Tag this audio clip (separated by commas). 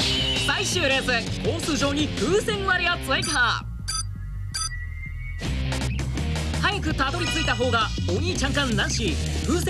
Speech, Music